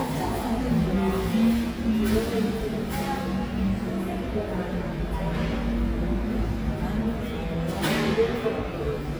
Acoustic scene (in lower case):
cafe